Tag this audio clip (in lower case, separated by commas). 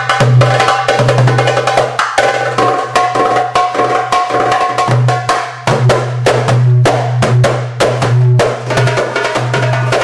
music, jazz